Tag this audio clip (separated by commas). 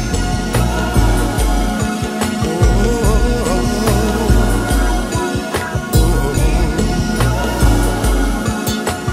Music